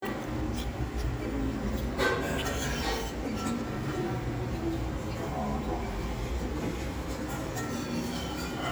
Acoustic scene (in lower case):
restaurant